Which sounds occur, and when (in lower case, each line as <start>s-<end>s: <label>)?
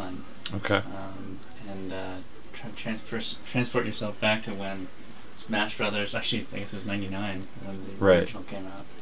0.0s-0.2s: male speech
0.0s-9.0s: conversation
0.0s-9.0s: mechanisms
0.4s-0.5s: tick
0.4s-1.3s: male speech
1.5s-2.2s: male speech
2.5s-3.3s: male speech
3.5s-4.9s: male speech
5.3s-6.4s: male speech
6.5s-7.4s: male speech
7.6s-8.8s: male speech